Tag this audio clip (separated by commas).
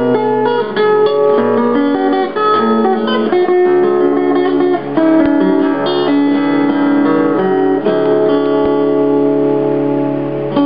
Plucked string instrument, Musical instrument, Guitar, Strum, Music